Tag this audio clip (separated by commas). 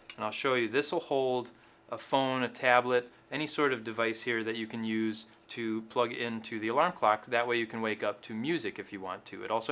Speech